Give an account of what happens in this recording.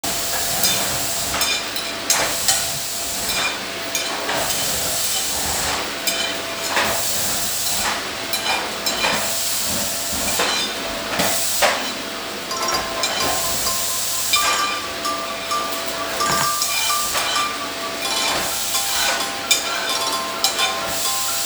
I was eating on the kitchen right from the pan. At the same time someone was using vacuum cleaner in the same room. While all of it was happening, my phone alarm went off.